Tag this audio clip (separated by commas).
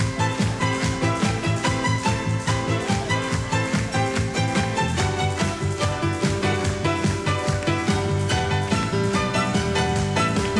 Music